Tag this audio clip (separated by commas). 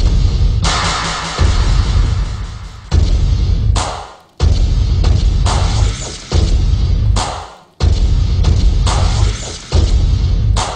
Dubstep, Music, Electronic music